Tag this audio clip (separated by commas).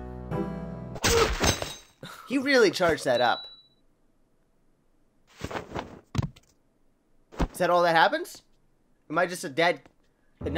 Music, Speech